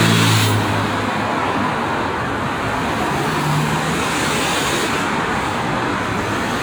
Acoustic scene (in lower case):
street